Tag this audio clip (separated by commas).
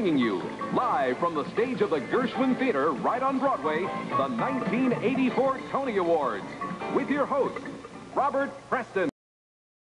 Music, Speech